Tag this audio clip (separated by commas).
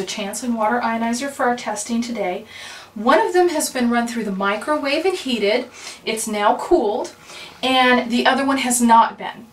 Speech